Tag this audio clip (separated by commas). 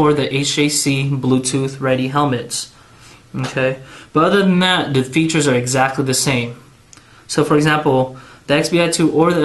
Speech